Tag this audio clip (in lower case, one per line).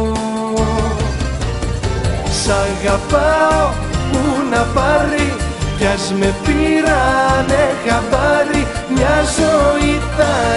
music